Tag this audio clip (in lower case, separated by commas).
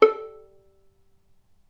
music, musical instrument, bowed string instrument